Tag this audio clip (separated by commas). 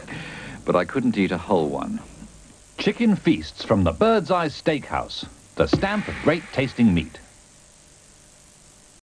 Speech